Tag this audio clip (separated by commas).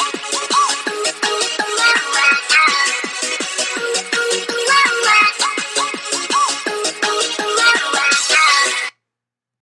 Theme music, Video game music, Music